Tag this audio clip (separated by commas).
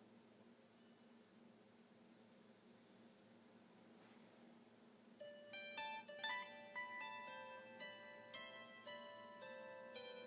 Pizzicato, Zither